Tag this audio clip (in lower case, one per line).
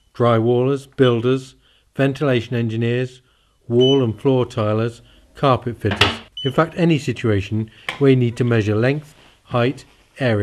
speech